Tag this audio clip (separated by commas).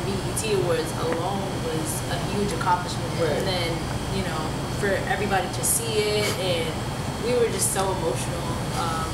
Speech